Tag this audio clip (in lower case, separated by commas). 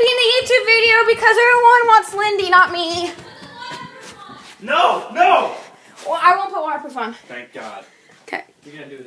speech, inside a small room